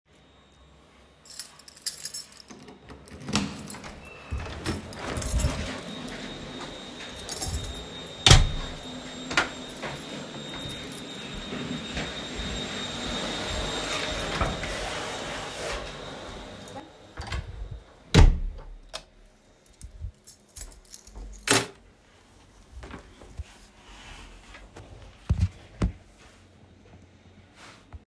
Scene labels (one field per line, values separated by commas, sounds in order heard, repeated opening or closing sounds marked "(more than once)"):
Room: hallway, living room, bedroom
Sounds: keys, keyboard typing, door (more than once), vacuum cleaner, light switch, footsteps